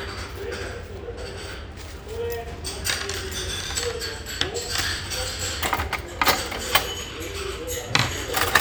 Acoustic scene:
restaurant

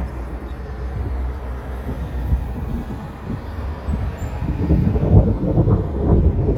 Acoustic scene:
street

